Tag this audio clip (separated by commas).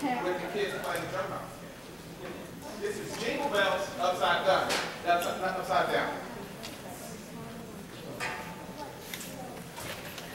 Speech